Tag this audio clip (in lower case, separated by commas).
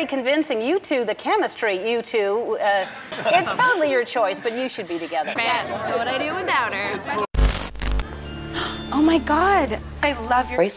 music, speech